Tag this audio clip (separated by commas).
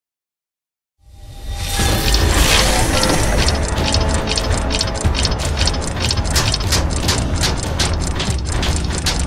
Gears, Mechanisms